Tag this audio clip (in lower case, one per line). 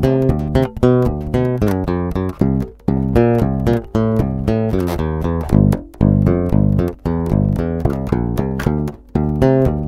music